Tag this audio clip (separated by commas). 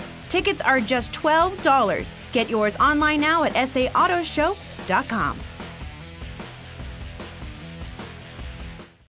Music, Speech